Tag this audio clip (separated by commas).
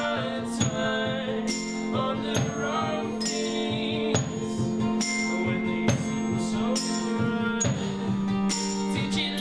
Music